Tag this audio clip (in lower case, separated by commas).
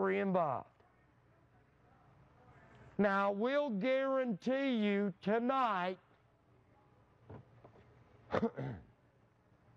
speech